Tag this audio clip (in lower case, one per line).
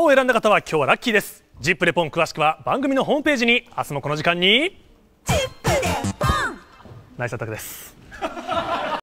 music
speech